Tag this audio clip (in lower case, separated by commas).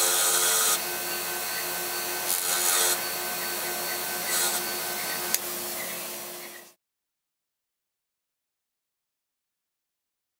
filing (rasp), rub